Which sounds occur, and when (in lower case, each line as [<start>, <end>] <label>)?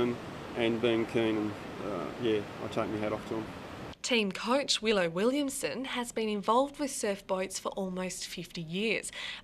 [0.00, 0.10] man speaking
[0.00, 3.92] wind
[0.00, 3.93] surf
[0.48, 1.51] man speaking
[1.75, 2.10] human voice
[2.14, 2.42] man speaking
[2.59, 3.49] man speaking
[4.02, 8.99] woman speaking
[9.09, 9.39] breathing